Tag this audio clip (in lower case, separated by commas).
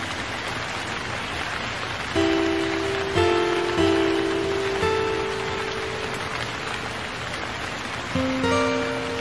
music, rain on surface